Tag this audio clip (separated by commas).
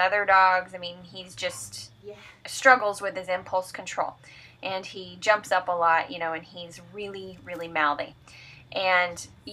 Speech